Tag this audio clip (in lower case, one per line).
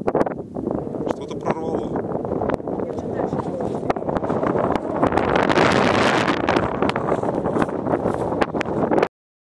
speech